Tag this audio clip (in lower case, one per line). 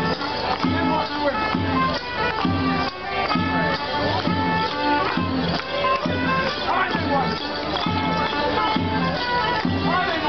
speech
music